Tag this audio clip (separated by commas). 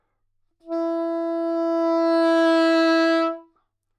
Music, Musical instrument, Wind instrument